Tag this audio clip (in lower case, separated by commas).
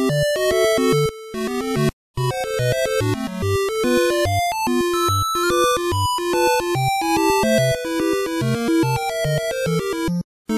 video game music, music